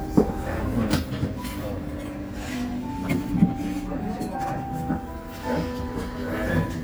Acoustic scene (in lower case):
restaurant